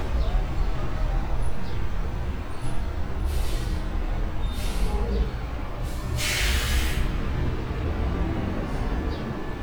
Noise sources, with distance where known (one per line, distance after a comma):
large-sounding engine